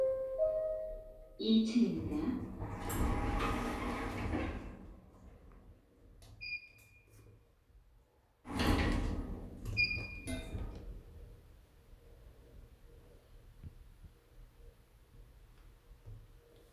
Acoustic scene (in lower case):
elevator